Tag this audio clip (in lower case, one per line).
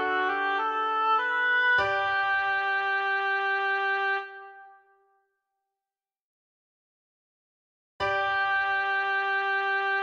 playing oboe